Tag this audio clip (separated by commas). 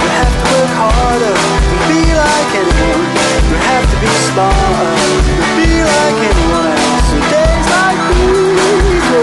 Music